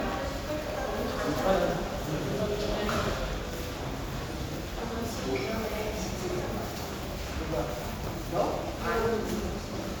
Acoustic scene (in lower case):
crowded indoor space